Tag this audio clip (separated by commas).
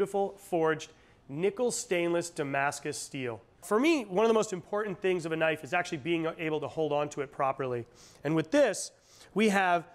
Speech